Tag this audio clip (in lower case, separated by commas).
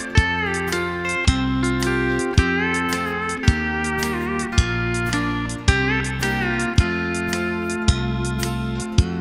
music, guitar, plucked string instrument, musical instrument, strum